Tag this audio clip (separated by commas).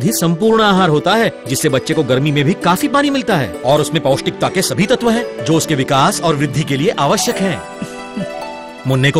Speech, Music